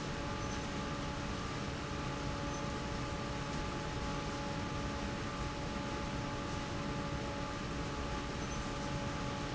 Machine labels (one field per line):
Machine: fan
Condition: normal